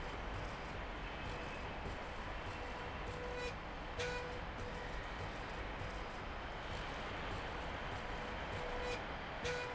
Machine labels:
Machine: slide rail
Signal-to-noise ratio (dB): 0 dB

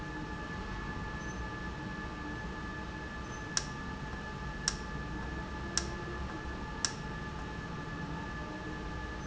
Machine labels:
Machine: valve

